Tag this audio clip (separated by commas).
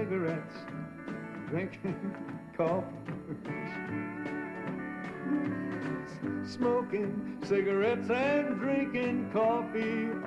Male singing, Music